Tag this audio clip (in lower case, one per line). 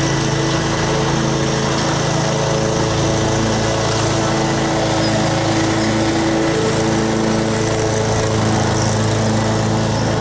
lawn mowing